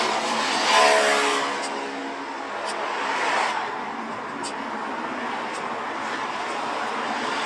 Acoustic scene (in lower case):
street